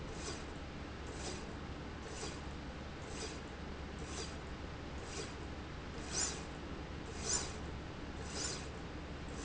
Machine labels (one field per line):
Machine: slide rail